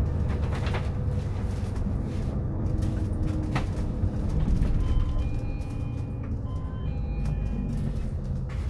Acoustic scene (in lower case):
bus